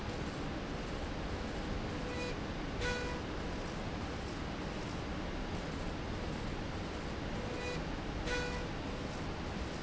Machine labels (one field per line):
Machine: slide rail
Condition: normal